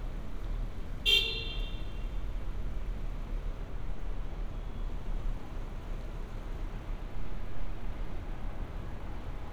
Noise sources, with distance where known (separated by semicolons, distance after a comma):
car horn, near